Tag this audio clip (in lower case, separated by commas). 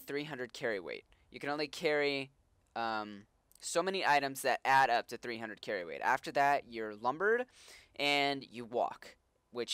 speech